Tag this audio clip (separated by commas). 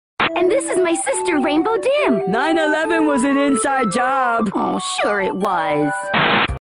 Music, Speech